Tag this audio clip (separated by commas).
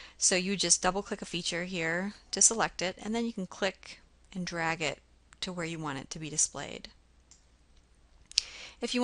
Speech